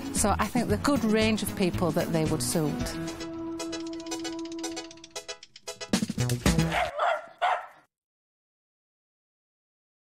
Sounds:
Bow-wow

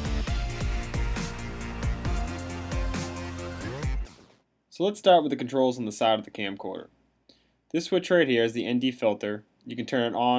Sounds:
Music, Speech

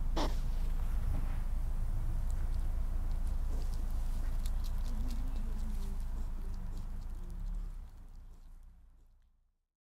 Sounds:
Speech

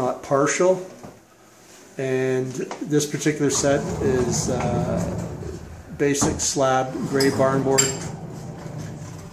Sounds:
Sliding door, Speech

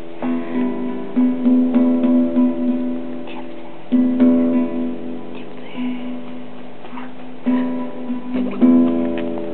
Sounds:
Plucked string instrument, Speech, Musical instrument, Music, Guitar, Acoustic guitar

